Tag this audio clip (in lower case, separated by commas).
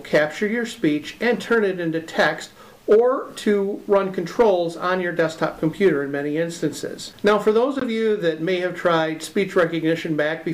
speech, male speech, monologue